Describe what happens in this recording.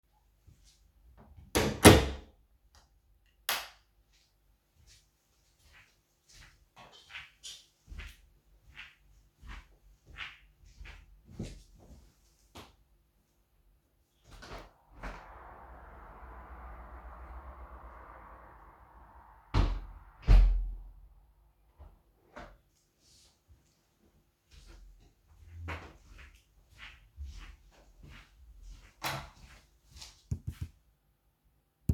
I closed the door, walked a bit and opened the window to get some fresh air, closed it and walked back